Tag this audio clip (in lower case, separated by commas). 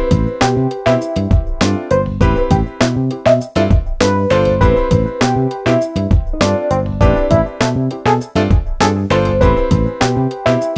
music